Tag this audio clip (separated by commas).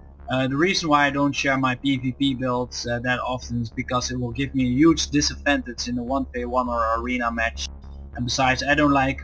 Speech